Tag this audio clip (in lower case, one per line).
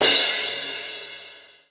music
musical instrument
cymbal
crash cymbal
percussion